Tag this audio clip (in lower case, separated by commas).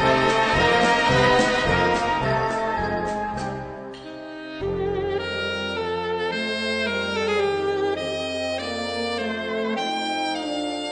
bowed string instrument, music